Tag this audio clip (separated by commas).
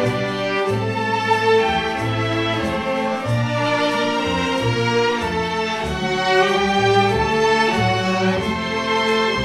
Orchestra